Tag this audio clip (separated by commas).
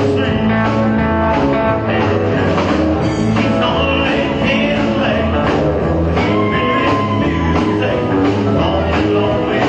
Musical instrument, Acoustic guitar, Guitar, Music